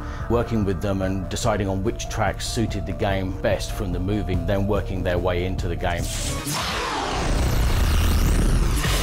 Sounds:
music
speech

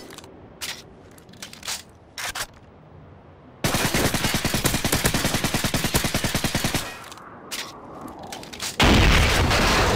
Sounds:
fusillade

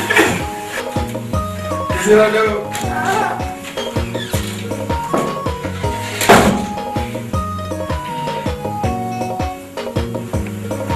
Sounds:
speech
inside a large room or hall
music

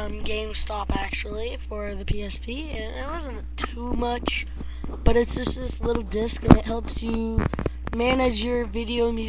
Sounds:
speech

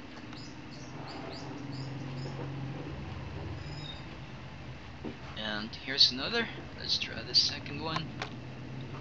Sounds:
speech

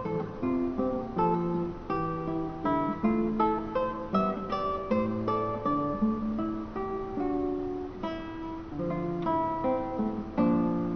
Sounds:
music

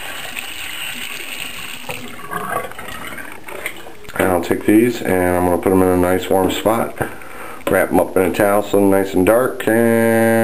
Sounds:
sink (filling or washing)
water

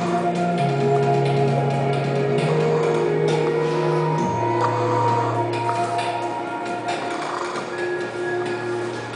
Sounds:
music

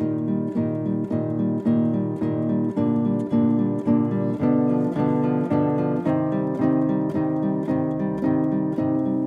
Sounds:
plucked string instrument
musical instrument
strum
guitar
acoustic guitar
music

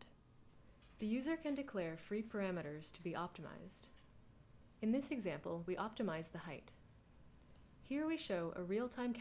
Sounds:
speech

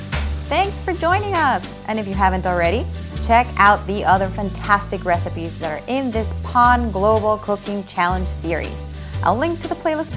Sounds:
speech
inside a small room

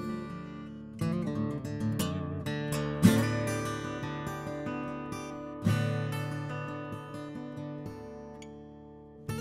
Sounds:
musical instrument
music
plucked string instrument
strum
acoustic guitar
guitar

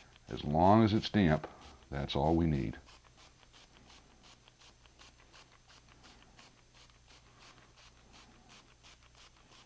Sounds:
speech
inside a small room

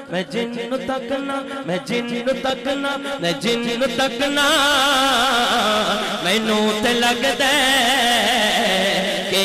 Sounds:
music

